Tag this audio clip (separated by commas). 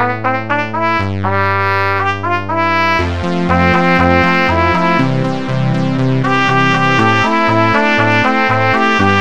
Musical instrument, Trumpet, Music